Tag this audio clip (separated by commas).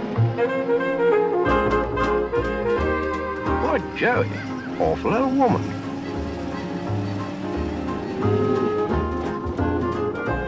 Speech, Music, Saxophone